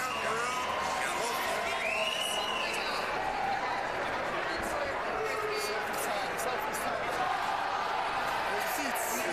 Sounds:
speech

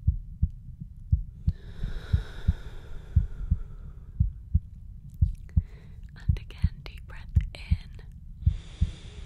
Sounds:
heart sounds

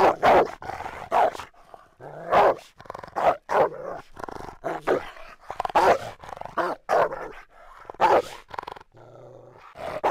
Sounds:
animal, growling, pets, dog

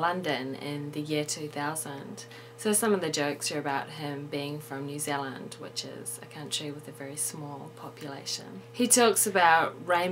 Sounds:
speech

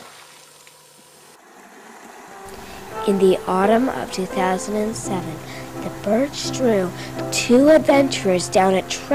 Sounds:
boat, vehicle, music, rowboat, speech

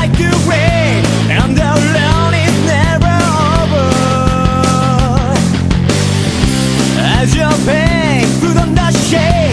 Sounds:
music

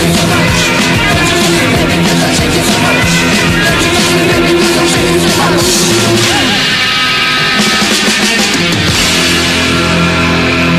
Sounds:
punk rock, music, singing

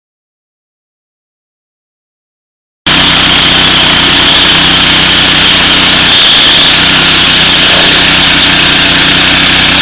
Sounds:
lawn mower

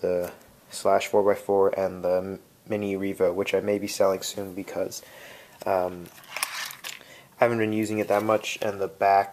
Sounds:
speech

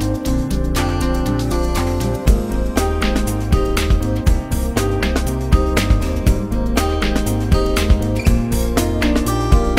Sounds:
music

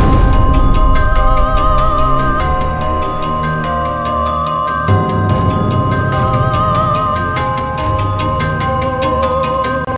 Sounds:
music, background music

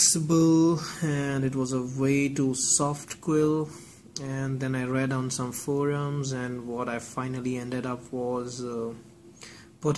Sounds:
speech

